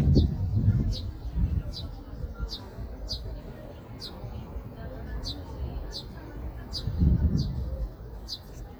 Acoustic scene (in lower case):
park